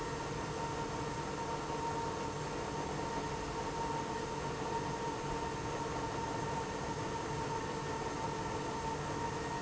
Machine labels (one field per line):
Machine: pump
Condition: abnormal